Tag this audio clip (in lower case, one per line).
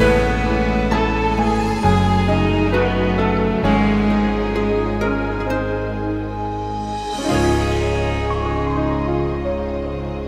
tender music
music